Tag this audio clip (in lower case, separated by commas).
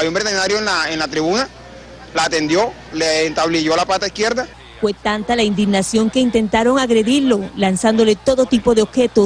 speech